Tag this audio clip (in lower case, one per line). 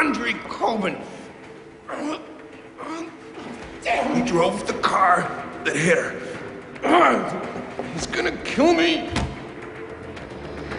speech